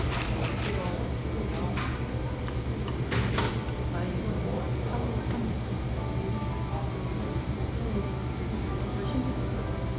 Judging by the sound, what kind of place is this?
cafe